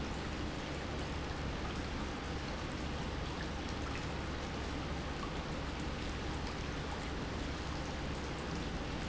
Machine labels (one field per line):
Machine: pump